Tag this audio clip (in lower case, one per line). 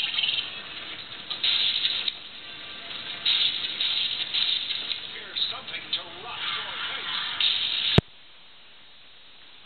speech